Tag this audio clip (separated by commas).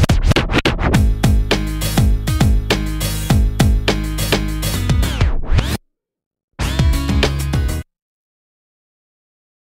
Music